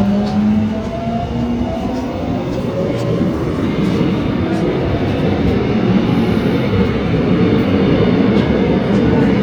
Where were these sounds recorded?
on a subway train